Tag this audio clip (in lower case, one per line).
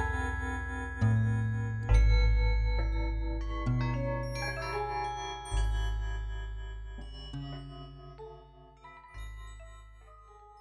glockenspiel
mallet percussion
xylophone